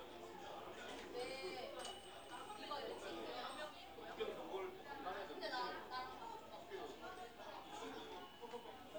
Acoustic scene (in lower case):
crowded indoor space